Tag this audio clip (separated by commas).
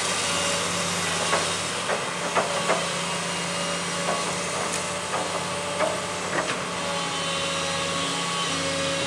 Truck, Vehicle